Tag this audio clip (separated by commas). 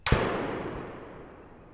Explosion, Gunshot